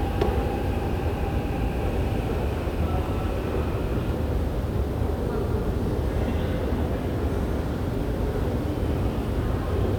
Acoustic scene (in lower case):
subway station